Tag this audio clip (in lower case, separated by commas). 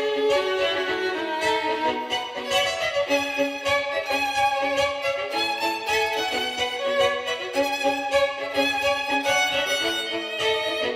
music, musical instrument, fiddle